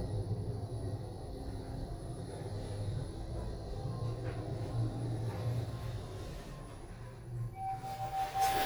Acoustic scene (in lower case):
elevator